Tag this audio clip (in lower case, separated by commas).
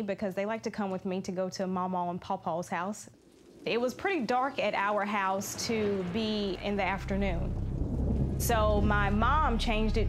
tornado roaring